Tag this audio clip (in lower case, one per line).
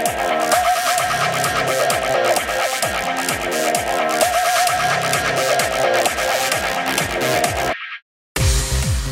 music